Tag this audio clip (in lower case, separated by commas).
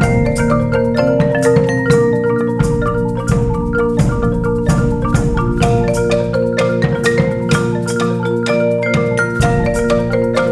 playing marimba